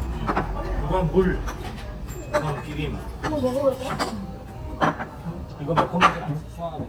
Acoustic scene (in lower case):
restaurant